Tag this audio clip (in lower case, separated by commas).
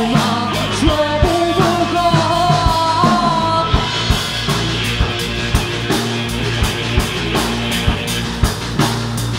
music, musical instrument, plucked string instrument, singing, rock music